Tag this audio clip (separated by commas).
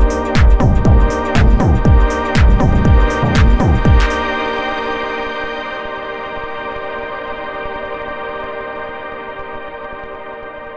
Music